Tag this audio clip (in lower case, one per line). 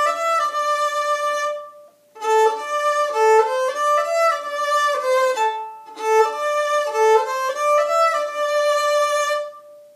music
fiddle
musical instrument